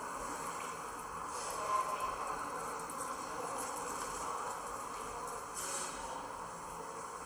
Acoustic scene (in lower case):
subway station